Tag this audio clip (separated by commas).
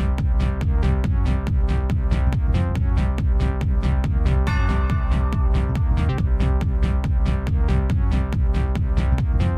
Dance music, Exciting music, House music, Techno, Music